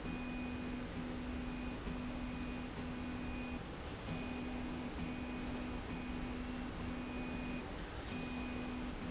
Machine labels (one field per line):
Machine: slide rail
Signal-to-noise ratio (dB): 0 dB